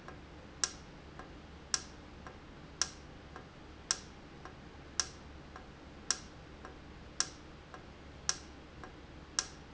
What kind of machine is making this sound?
valve